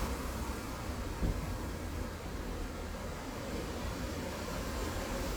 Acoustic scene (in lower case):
street